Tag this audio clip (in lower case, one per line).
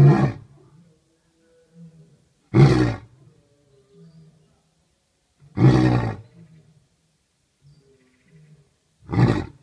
roar